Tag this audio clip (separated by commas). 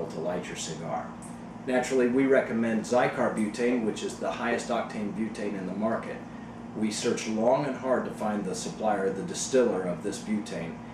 Speech